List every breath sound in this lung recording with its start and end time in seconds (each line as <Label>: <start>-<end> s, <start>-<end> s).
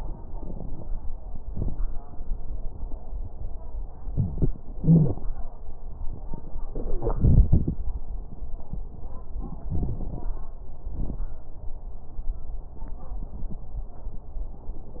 Inhalation: 0.32-0.86 s
Exhalation: 1.49-1.73 s
Wheeze: 4.79-5.20 s
Crackles: 0.32-0.86 s, 1.49-1.73 s